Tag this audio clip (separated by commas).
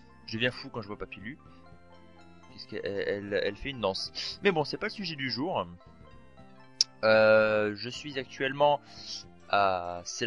Music, Speech